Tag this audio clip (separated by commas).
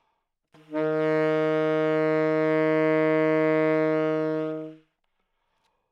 Musical instrument, Music, woodwind instrument